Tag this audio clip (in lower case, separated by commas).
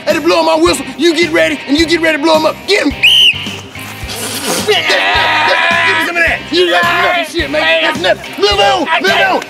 music, speech